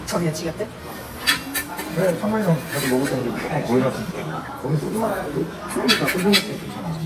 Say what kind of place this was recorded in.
crowded indoor space